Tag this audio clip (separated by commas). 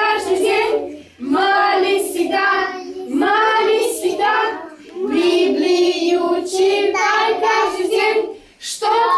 Choir, Child singing